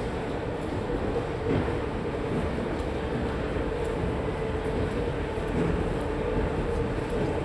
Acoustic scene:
subway station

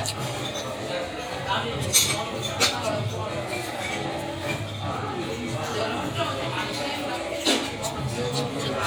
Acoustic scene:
restaurant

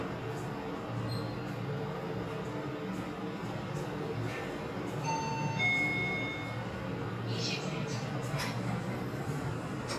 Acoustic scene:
elevator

